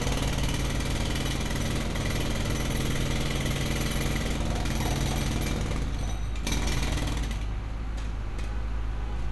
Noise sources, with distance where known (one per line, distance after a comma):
jackhammer, near